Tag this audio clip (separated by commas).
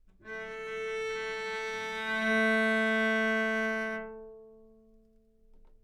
Musical instrument, Music, Bowed string instrument